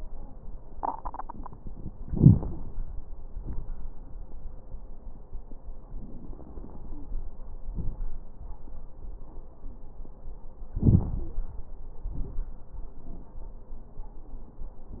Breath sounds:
2.05-2.56 s: inhalation
2.05-2.56 s: crackles
3.26-3.77 s: exhalation
3.26-3.77 s: crackles
5.90-7.07 s: inhalation
6.87-7.13 s: wheeze
7.72-8.12 s: exhalation
7.72-8.12 s: crackles
10.74-11.34 s: inhalation
11.19-11.40 s: wheeze
12.10-12.49 s: exhalation
12.10-12.49 s: crackles

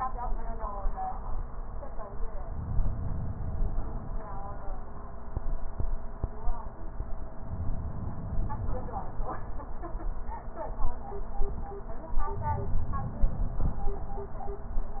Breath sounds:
2.42-4.23 s: inhalation
7.39-9.29 s: inhalation
12.24-13.89 s: inhalation

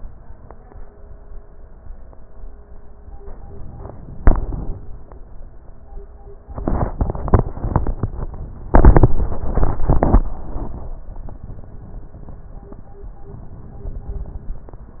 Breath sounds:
3.43-4.80 s: inhalation
13.33-14.70 s: inhalation

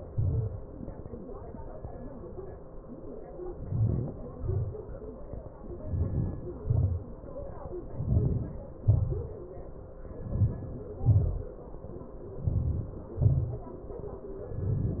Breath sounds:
3.28-4.20 s: inhalation
4.19-4.78 s: exhalation
5.58-6.53 s: inhalation
6.60-7.31 s: exhalation
7.72-8.58 s: inhalation
8.61-9.30 s: exhalation
10.02-11.08 s: inhalation
11.08-11.77 s: exhalation
12.31-13.17 s: inhalation
13.19-13.78 s: exhalation
14.38-15.00 s: inhalation

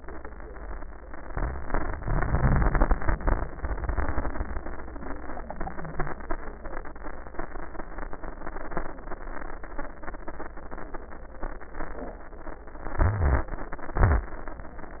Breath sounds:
1.26-3.50 s: inhalation
1.26-3.50 s: crackles
3.60-6.12 s: exhalation
3.60-6.12 s: wheeze
3.60-6.12 s: crackles
12.96-13.97 s: inhalation
12.96-13.98 s: crackles
13.98-15.00 s: crackles
14.02-15.00 s: exhalation

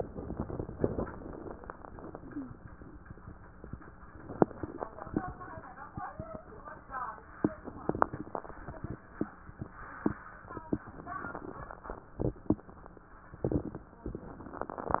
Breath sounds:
0.00-0.98 s: crackles
0.00-1.01 s: inhalation
1.07-2.60 s: exhalation
2.06-2.60 s: wheeze
4.24-5.36 s: inhalation
4.26-5.34 s: crackles
7.39-8.51 s: crackles
7.42-8.55 s: inhalation
8.56-10.87 s: exhalation
10.85-12.18 s: crackles
10.86-12.18 s: inhalation

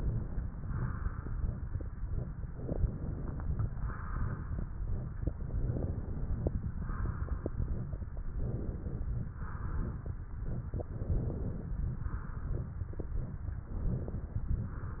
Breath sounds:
0.00-0.52 s: inhalation
0.58-1.54 s: exhalation
2.54-3.70 s: inhalation
3.79-4.80 s: exhalation
5.31-6.47 s: inhalation
6.81-8.03 s: exhalation
8.35-9.33 s: inhalation
9.33-10.13 s: exhalation
10.79-11.69 s: inhalation
11.96-12.73 s: exhalation
13.60-14.48 s: inhalation
14.64-15.00 s: exhalation

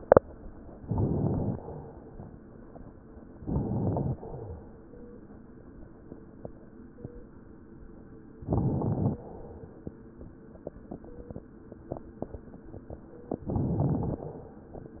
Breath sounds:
0.80-1.65 s: inhalation
0.80-1.65 s: crackles
3.38-4.23 s: inhalation
3.38-4.23 s: crackles
8.37-9.22 s: inhalation
8.37-9.22 s: crackles
13.51-14.36 s: inhalation
13.51-14.36 s: crackles

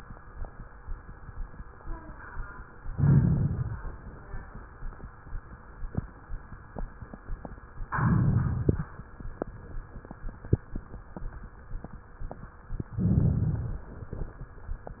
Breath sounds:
2.92-3.79 s: inhalation
7.96-8.84 s: inhalation
12.95-13.83 s: inhalation

